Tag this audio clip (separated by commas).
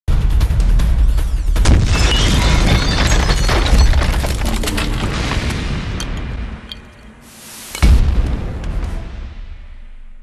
Music